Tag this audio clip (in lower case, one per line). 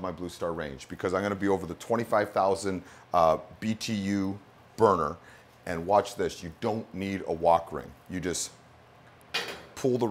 speech